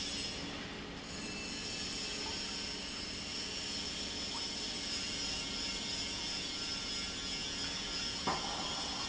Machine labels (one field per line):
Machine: pump